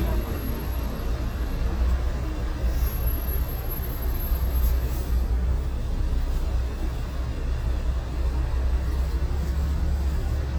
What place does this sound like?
street